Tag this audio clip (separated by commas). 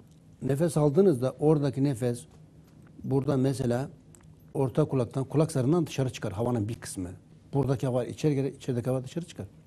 Speech